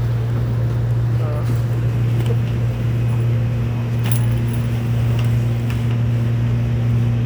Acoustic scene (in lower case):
subway station